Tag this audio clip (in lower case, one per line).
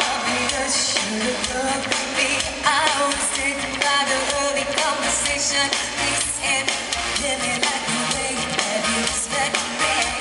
music